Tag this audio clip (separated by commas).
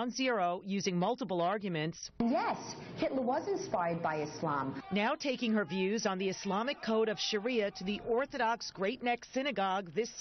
Speech